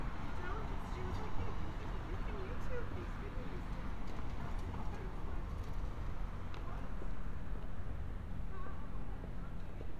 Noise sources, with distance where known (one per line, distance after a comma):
person or small group talking